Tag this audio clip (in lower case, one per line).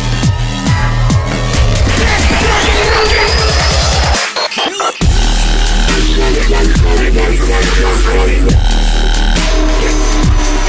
music
jingle (music)